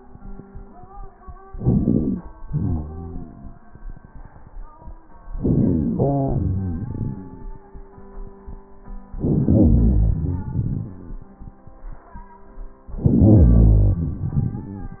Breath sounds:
1.50-2.37 s: inhalation
2.36-3.74 s: exhalation
5.25-6.00 s: inhalation
6.01-7.68 s: exhalation
9.12-10.11 s: inhalation
10.11-11.42 s: exhalation
12.87-14.19 s: inhalation
14.19-15.00 s: exhalation

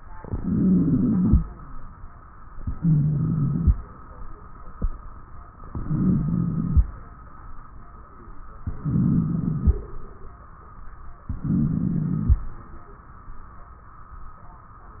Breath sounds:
0.10-1.41 s: inhalation
0.10-1.41 s: wheeze
2.67-3.75 s: inhalation
2.67-3.75 s: wheeze
5.71-6.79 s: inhalation
5.71-6.79 s: wheeze
8.70-9.78 s: inhalation
8.70-9.78 s: wheeze
11.30-12.38 s: inhalation
11.30-12.38 s: wheeze

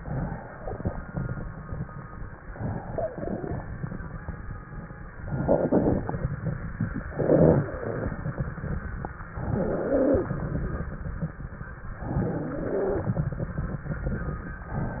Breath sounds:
2.49-3.57 s: inhalation
2.85-3.65 s: wheeze
3.70-5.26 s: crackles
5.35-6.17 s: inhalation
6.19-7.02 s: crackles
7.16-7.80 s: inhalation
7.74-9.34 s: crackles
9.41-10.23 s: inhalation
10.34-11.94 s: crackles
12.09-13.15 s: inhalation
13.13-14.72 s: crackles

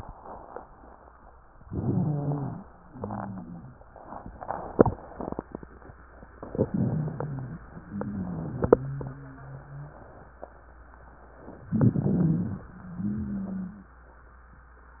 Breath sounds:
1.59-2.64 s: inhalation
1.59-2.64 s: wheeze
2.86-3.79 s: exhalation
2.86-3.79 s: wheeze
6.43-7.62 s: inhalation
6.43-7.62 s: wheeze
7.80-10.04 s: exhalation
7.80-10.04 s: wheeze
11.65-12.68 s: inhalation
11.65-12.68 s: wheeze
12.74-13.93 s: exhalation
12.74-13.93 s: wheeze

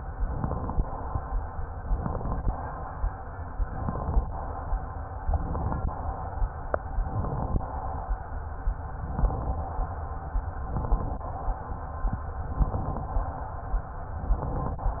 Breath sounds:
0.12-0.84 s: inhalation
1.79-2.51 s: inhalation
3.56-4.28 s: inhalation
5.23-5.95 s: inhalation
6.88-7.60 s: inhalation
8.99-9.71 s: inhalation
10.62-11.34 s: inhalation
12.51-13.23 s: inhalation
14.14-14.86 s: inhalation

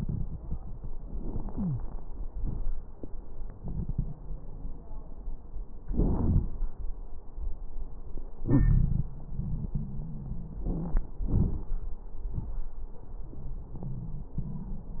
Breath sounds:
1.04-2.03 s: inhalation
1.51-1.82 s: wheeze
2.36-2.73 s: exhalation
2.36-2.73 s: crackles
8.42-11.04 s: wheeze
10.64-11.08 s: inhalation
11.31-11.75 s: exhalation
11.31-11.75 s: crackles

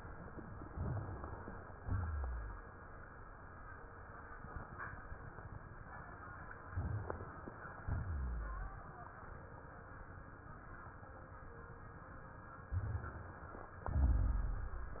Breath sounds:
0.67-1.66 s: crackles
0.68-1.75 s: inhalation
1.80-2.66 s: exhalation
1.80-2.66 s: rhonchi
6.74-7.28 s: inhalation
6.74-7.28 s: crackles
7.84-8.86 s: exhalation
7.84-8.86 s: rhonchi
12.71-13.80 s: inhalation
12.71-13.80 s: crackles
13.91-15.00 s: exhalation
13.91-15.00 s: rhonchi

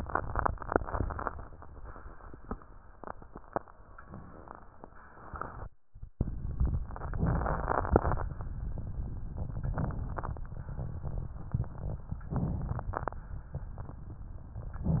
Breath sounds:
7.10-8.31 s: inhalation
9.64-10.09 s: inhalation
12.25-12.88 s: inhalation

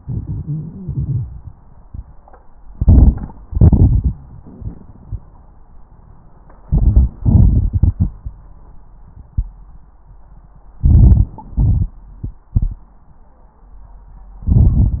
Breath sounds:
2.70-3.44 s: crackles
2.72-3.46 s: inhalation
3.52-4.26 s: exhalation
3.52-4.26 s: crackles
6.64-7.23 s: inhalation
6.64-7.23 s: crackles
7.26-8.38 s: exhalation
7.26-8.38 s: crackles
10.76-11.53 s: inhalation
10.76-11.53 s: crackles
11.58-12.86 s: exhalation
11.58-12.86 s: crackles
14.42-15.00 s: inhalation
14.42-15.00 s: crackles

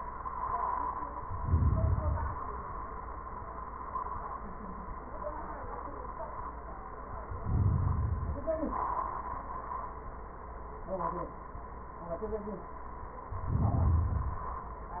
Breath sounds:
1.30-2.40 s: inhalation
7.39-8.45 s: inhalation
13.35-14.41 s: inhalation

